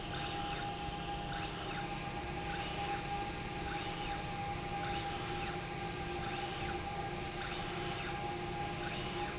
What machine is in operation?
slide rail